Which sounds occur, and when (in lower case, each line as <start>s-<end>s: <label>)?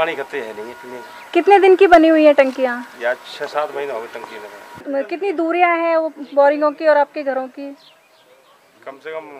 0.0s-1.0s: male speech
0.0s-4.8s: mechanisms
0.0s-9.3s: conversation
0.0s-9.3s: wind
1.1s-1.3s: bird call
1.3s-2.8s: female speech
2.4s-2.6s: generic impact sounds
3.0s-4.5s: male speech
3.4s-3.6s: generic impact sounds
3.8s-4.6s: bird call
4.2s-4.3s: generic impact sounds
4.7s-4.9s: generic impact sounds
4.8s-7.7s: female speech
6.1s-6.9s: human voice
6.2s-6.4s: bird call
7.7s-8.7s: bird call
8.8s-9.3s: male speech